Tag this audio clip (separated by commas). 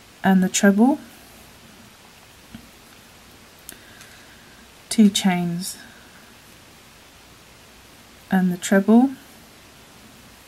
Speech